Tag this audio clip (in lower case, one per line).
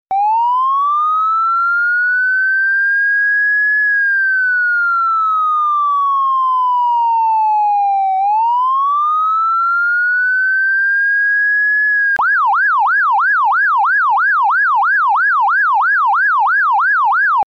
motor vehicle (road)
siren
alarm
vehicle